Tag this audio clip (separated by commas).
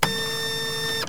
Printer, Mechanisms